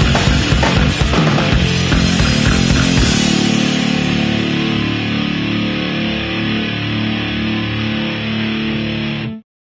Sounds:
music, guitar, musical instrument, strum, plucked string instrument, electric guitar

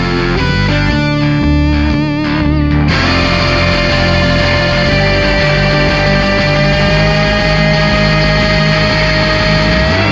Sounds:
musical instrument, distortion, music

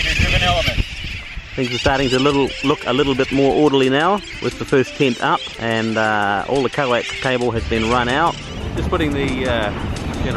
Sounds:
speech, music, outside, rural or natural

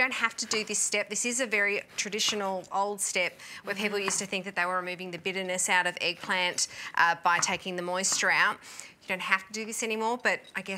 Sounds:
speech

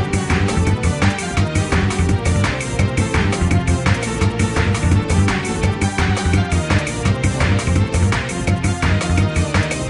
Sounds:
music

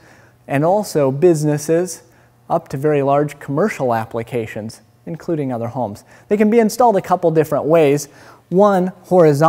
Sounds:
speech

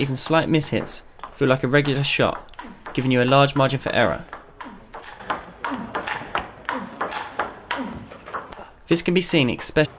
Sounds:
inside a large room or hall, speech

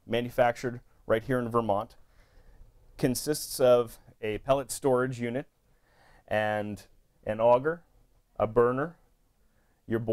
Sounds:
speech

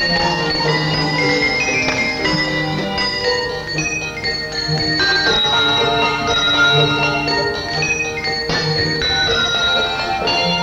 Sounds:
orchestra, music

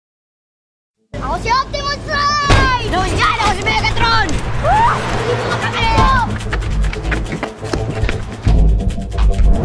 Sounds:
music, speech

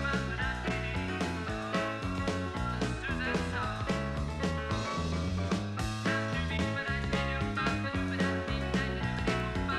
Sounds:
music

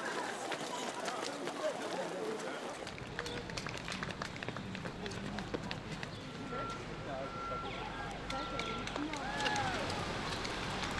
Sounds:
run, outside, urban or man-made, people running, speech

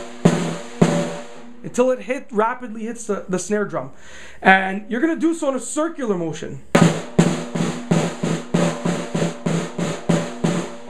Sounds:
percussion, snare drum, drum

